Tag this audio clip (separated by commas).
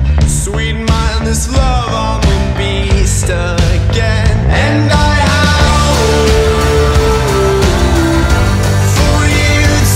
Music